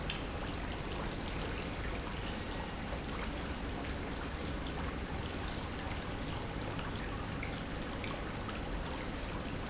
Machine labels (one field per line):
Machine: pump